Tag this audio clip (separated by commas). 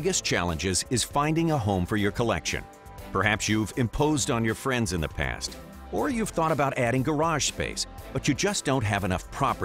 Speech, Music